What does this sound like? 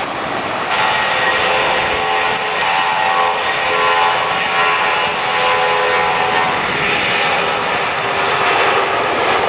An aircraft engine is accelerating and vibrating